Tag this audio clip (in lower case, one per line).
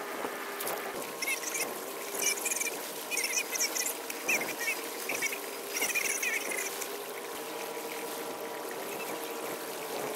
water vehicle
vehicle